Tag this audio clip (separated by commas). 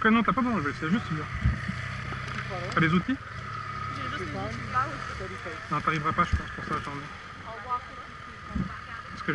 Speech